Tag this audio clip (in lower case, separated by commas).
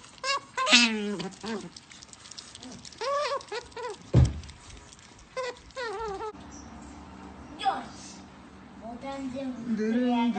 otter growling